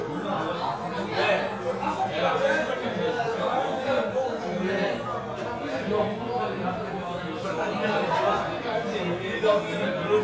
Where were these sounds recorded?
in a crowded indoor space